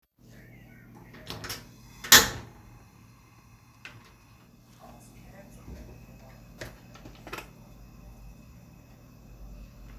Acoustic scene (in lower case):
kitchen